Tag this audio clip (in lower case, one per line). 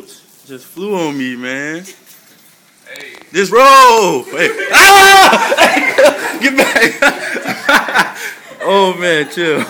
speech